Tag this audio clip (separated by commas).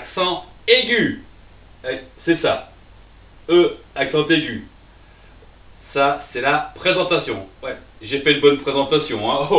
Speech